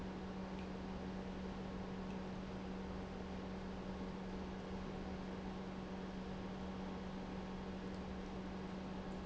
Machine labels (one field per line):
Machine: pump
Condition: normal